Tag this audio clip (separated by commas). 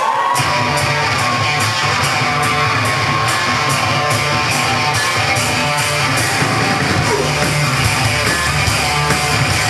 Music